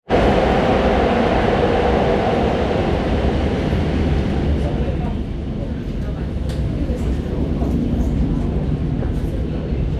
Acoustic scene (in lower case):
subway train